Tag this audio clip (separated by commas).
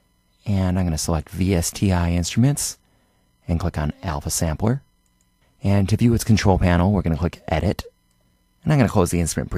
Speech